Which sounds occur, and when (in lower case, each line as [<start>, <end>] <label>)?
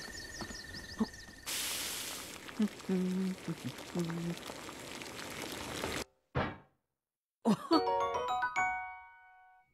[0.00, 0.11] walk
[0.00, 1.46] bird call
[0.00, 6.86] video game sound
[0.38, 0.54] walk
[0.94, 1.03] human sounds
[1.42, 6.03] crackle
[2.55, 4.34] singing
[6.33, 6.77] generic impact sounds
[7.41, 9.73] video game sound
[7.43, 7.69] human sounds
[7.69, 9.73] music